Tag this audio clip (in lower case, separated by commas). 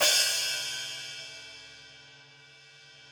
hi-hat, cymbal, percussion, musical instrument, music